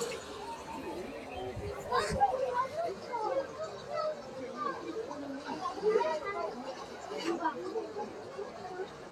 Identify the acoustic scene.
park